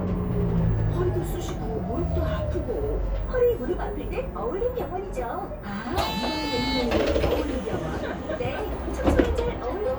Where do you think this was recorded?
on a bus